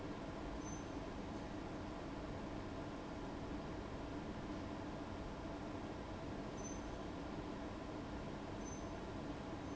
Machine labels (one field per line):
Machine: fan